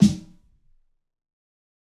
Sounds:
percussion
snare drum
music
drum
musical instrument

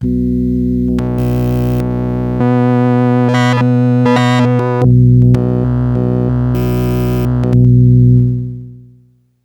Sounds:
musical instrument
music
keyboard (musical)

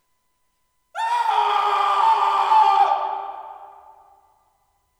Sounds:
human voice
screaming

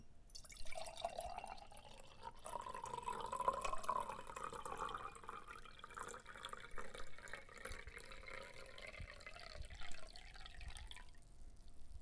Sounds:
liquid

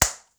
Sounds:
clapping
hands

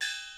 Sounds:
musical instrument
music
gong
percussion

